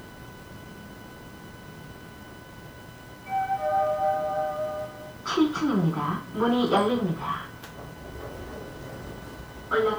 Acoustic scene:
elevator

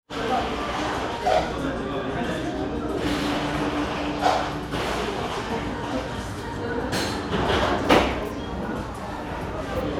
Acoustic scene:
cafe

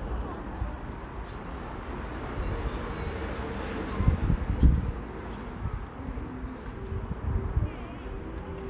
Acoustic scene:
residential area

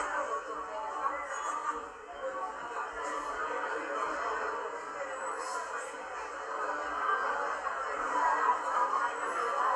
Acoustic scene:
cafe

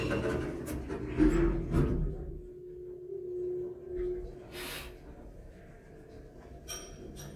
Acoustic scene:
elevator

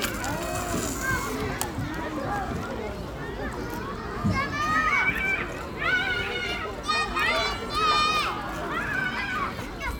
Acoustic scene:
park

